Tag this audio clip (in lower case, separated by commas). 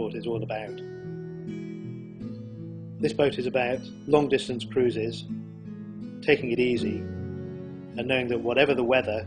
music, speech